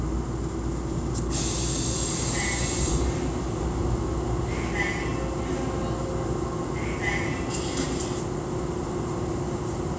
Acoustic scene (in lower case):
subway train